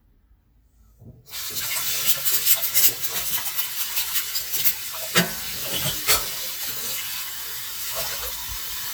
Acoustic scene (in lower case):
kitchen